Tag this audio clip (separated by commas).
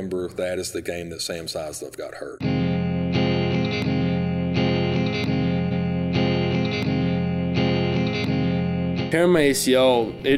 Electric guitar